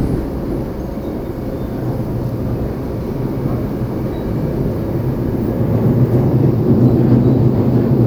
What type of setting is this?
subway train